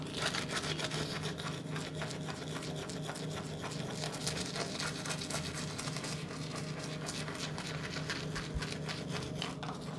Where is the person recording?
in a restroom